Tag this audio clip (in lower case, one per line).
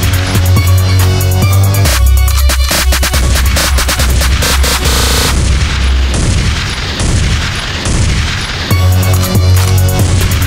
music